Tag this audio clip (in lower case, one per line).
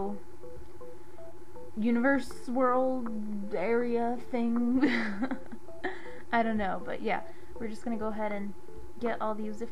music
speech